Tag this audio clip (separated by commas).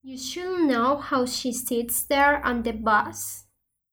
Speech, Human voice